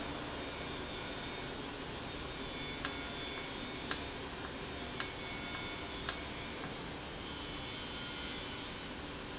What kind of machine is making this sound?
valve